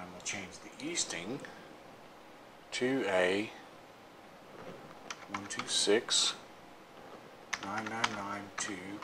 A male talks over keyboard tapping